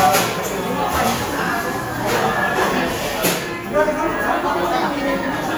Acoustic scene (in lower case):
cafe